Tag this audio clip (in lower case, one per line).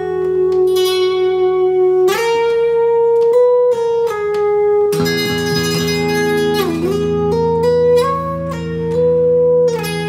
inside a small room
musical instrument
plucked string instrument
acoustic guitar
guitar
music